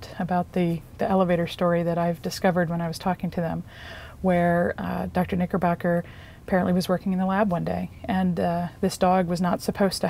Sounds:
Speech, inside a large room or hall

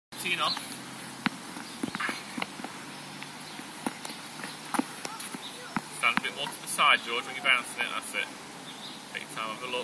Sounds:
playing tennis

